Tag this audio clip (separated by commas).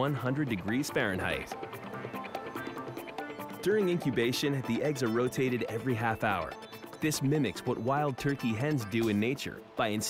Music, Speech